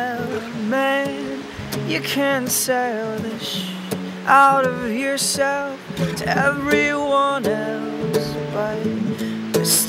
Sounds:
Music

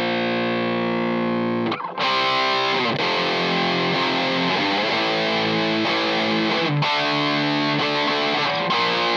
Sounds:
Music, Guitar, Electric guitar, playing electric guitar, Musical instrument, Strum, Plucked string instrument

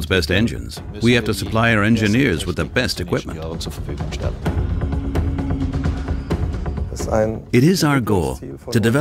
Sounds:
Music, Speech

